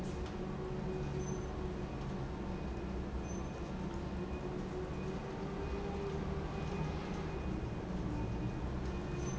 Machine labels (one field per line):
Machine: pump